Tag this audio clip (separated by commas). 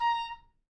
Music, Musical instrument, Wind instrument